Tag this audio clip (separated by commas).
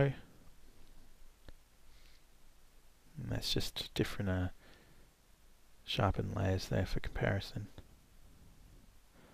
Speech, inside a small room